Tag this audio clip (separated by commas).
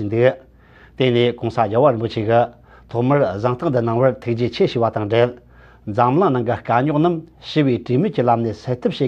Speech